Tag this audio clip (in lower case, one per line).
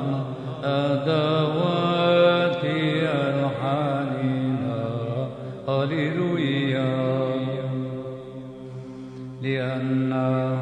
male singing